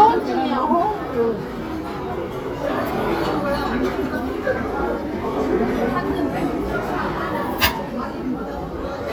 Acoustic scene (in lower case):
restaurant